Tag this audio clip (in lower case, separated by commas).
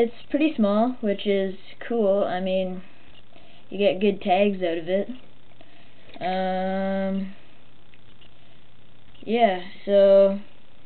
speech